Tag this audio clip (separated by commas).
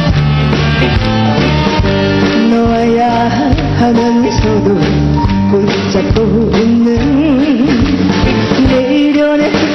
Music